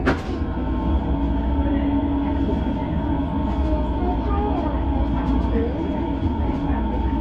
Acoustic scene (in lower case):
subway train